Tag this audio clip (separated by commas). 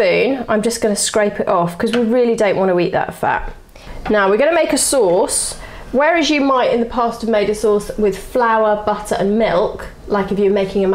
Speech